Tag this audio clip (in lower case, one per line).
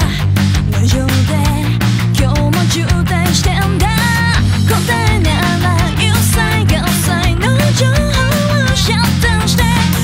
soul music
music